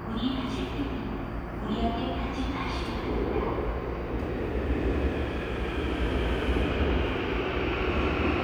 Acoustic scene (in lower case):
subway station